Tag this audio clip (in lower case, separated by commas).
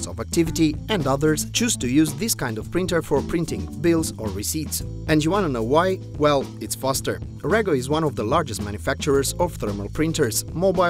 speech, music